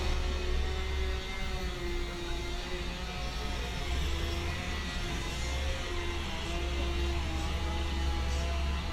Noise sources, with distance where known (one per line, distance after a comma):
unidentified impact machinery, far
chainsaw, near